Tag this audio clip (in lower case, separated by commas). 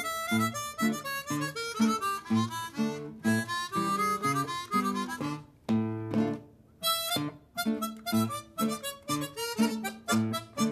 musical instrument, guitar, music, harmonica, plucked string instrument